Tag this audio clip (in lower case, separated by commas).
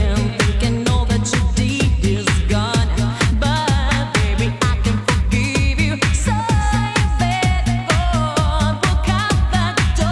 dance music, music